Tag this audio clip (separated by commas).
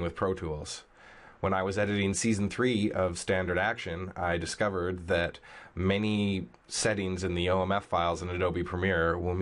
Speech